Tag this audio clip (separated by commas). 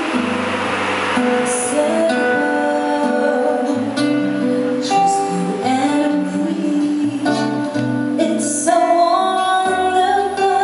Music, Jazz